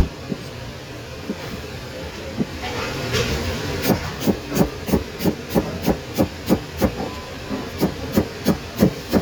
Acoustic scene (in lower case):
kitchen